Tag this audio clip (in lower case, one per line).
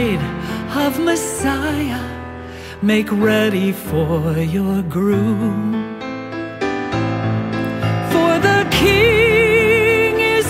song